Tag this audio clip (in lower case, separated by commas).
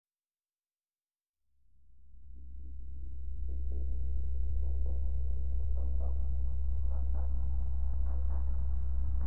music